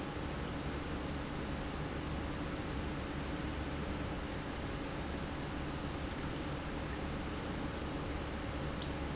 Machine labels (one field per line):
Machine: pump